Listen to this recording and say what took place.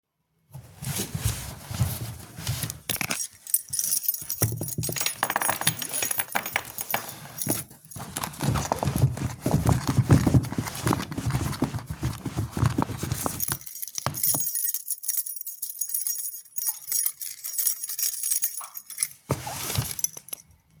I open the drawer, shake the key and close the drawer